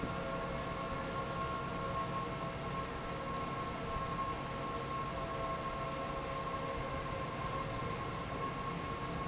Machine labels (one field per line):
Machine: fan